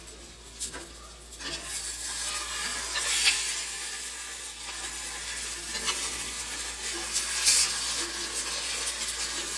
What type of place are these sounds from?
kitchen